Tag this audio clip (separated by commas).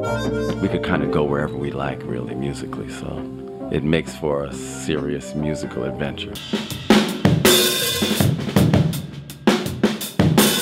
Drum, Rimshot, Drum kit, Percussion, Bass drum, Snare drum